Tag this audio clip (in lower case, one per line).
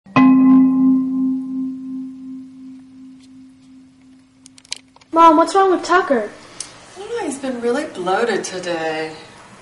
speech